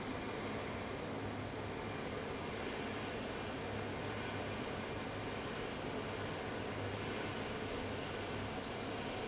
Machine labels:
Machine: fan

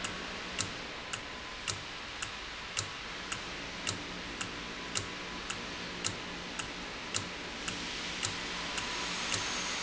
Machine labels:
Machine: valve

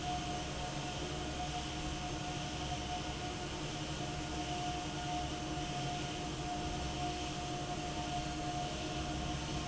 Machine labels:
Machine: fan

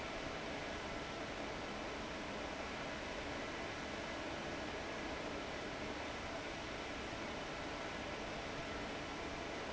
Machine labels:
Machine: fan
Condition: abnormal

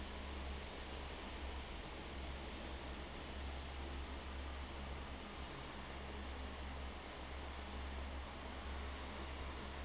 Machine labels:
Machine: fan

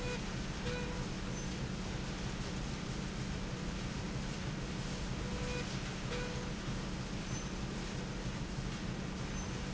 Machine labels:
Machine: slide rail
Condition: normal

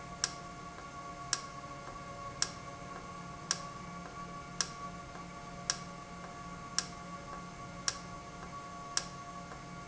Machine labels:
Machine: valve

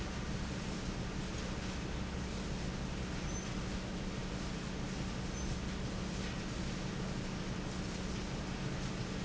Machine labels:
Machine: fan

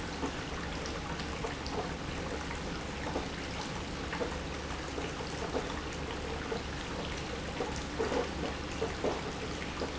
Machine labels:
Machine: pump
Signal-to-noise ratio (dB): -6 dB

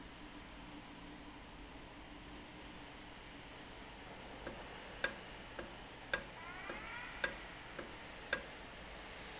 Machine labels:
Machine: valve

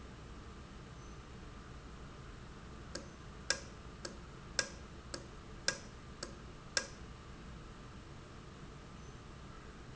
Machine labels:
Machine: valve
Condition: normal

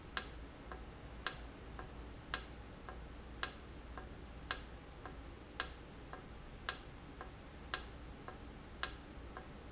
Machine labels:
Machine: valve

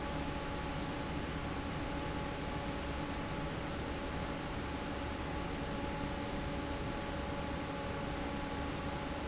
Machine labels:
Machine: fan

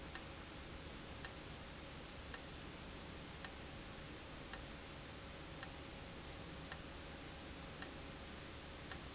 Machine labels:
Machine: valve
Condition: abnormal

